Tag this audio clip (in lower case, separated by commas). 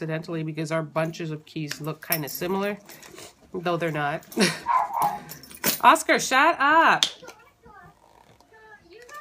dog, speech, inside a small room